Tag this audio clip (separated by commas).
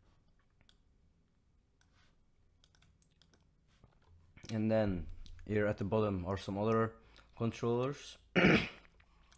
Speech, Clicking